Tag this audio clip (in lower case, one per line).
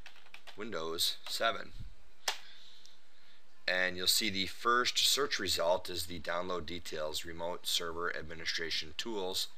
speech